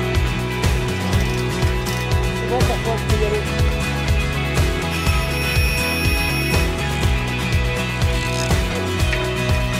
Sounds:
Speech, Music

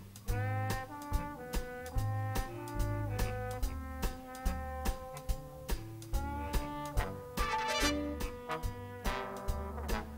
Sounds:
Orchestra, Music

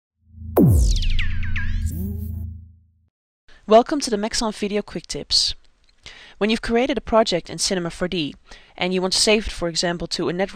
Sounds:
Speech

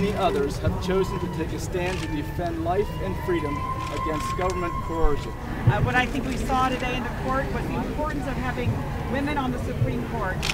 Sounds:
Speech

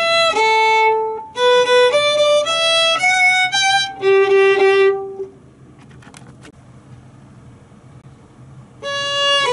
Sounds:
fiddle, Music, Musical instrument

